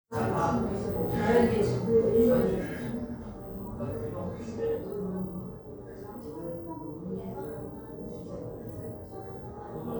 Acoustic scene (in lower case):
crowded indoor space